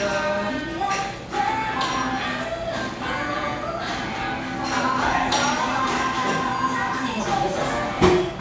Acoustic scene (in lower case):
cafe